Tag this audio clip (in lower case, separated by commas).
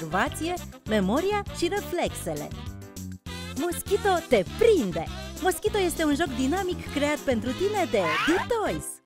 speech, music